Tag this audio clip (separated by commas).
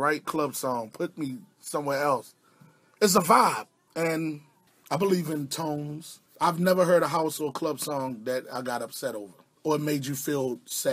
Speech